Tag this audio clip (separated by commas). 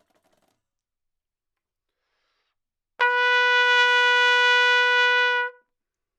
Musical instrument, Brass instrument, Trumpet, Music